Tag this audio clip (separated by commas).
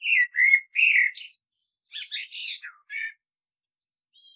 Wild animals, Bird, Animal